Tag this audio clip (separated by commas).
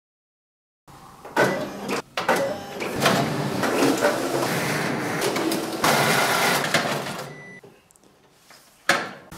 Printer, printer printing